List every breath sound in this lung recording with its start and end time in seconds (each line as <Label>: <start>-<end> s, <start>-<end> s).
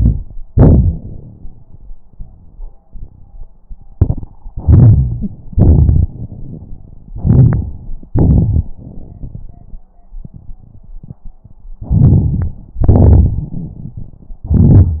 Inhalation: 0.00-0.32 s, 2.07-2.78 s, 4.50-5.38 s, 7.09-7.72 s, 11.83-12.57 s, 14.45-15.00 s
Exhalation: 0.49-1.91 s, 2.85-3.45 s, 5.54-6.08 s, 8.11-8.77 s, 12.81-14.44 s
Wheeze: 13.46-14.15 s
Crackles: 0.49-1.91 s